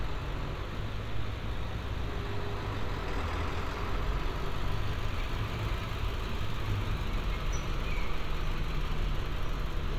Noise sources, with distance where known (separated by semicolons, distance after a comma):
large-sounding engine, near